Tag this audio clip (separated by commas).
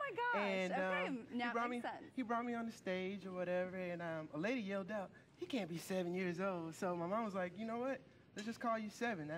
Speech